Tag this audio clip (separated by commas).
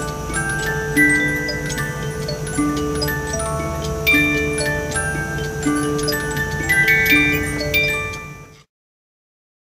Music